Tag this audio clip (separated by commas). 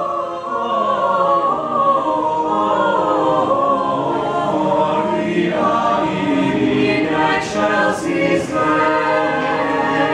A capella